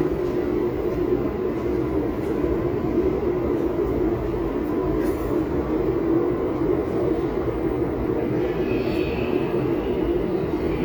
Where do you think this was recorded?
in a subway station